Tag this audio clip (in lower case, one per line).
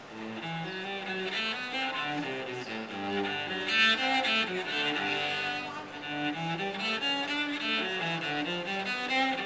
bowed string instrument
cello